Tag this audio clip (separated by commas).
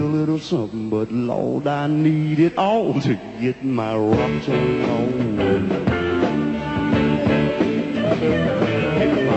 Bowed string instrument, Musical instrument, Blues, Singing, Drum kit, Music, Bass guitar, Drum